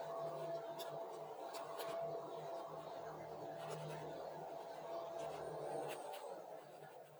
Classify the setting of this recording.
elevator